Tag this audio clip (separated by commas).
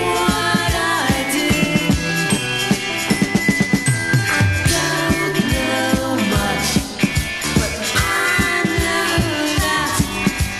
Ska